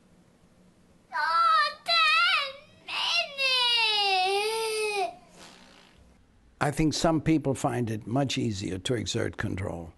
A child whining followed by a man speaking